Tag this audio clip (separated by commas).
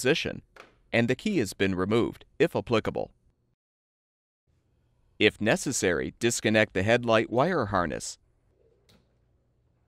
Speech